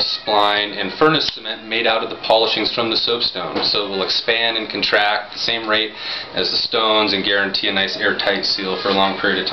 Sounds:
speech, music

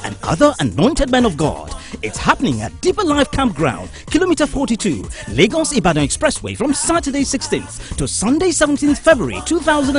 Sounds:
speech, music

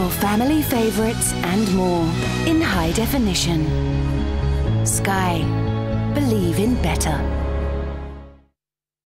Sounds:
music, speech

